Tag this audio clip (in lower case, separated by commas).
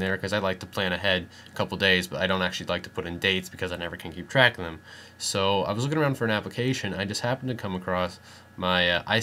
speech